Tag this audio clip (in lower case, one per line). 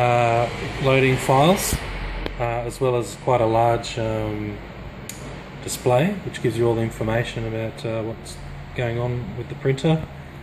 speech